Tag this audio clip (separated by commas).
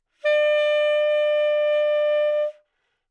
Music, Musical instrument, woodwind instrument